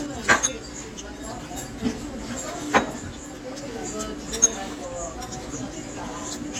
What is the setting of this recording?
restaurant